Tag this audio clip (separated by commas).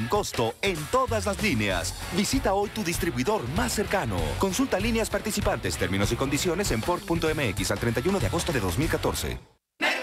Music, Speech